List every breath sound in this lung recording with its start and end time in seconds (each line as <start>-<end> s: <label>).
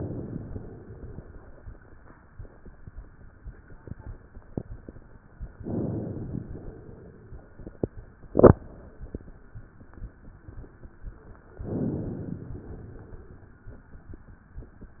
0.00-1.28 s: inhalation
5.57-6.55 s: inhalation
6.55-7.54 s: exhalation
11.52-12.44 s: inhalation
12.49-13.53 s: exhalation